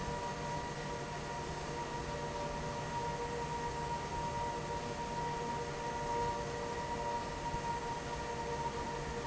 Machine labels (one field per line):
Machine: fan